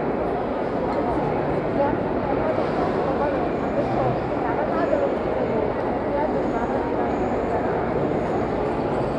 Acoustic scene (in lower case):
crowded indoor space